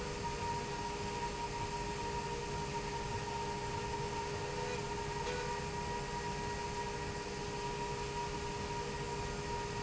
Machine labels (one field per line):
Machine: slide rail